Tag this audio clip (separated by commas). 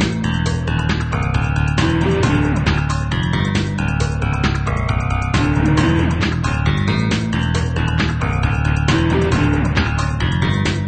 Music